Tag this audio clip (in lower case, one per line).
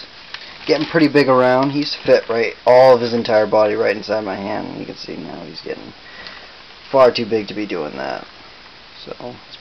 speech
inside a small room